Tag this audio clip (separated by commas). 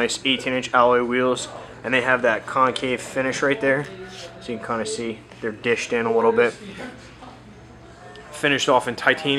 Speech